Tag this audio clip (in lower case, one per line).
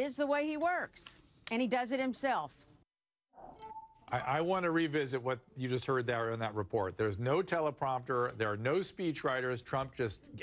conversation
speech
narration
female speech
man speaking